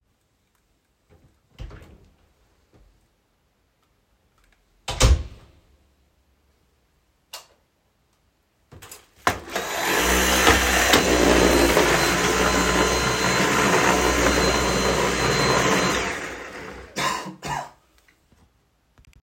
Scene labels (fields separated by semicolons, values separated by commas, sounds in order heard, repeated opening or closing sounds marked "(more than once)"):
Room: hallway; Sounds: door (more than once), light switch, vacuum cleaner